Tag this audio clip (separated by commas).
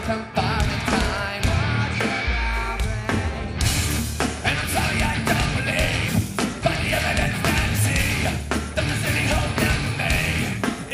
Music